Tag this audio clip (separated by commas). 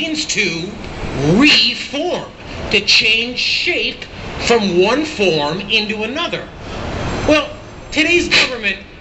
Speech